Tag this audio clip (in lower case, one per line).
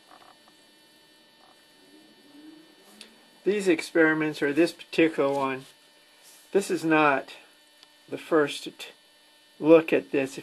speech